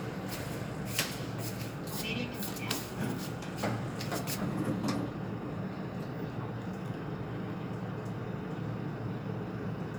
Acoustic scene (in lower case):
elevator